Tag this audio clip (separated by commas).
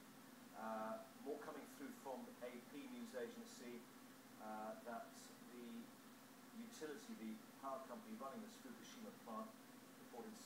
Speech